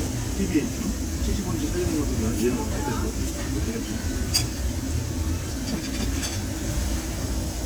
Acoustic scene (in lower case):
crowded indoor space